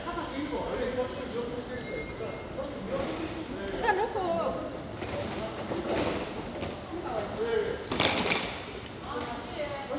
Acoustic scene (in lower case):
subway station